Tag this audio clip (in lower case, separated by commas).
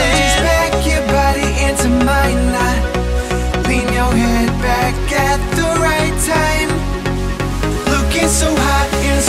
music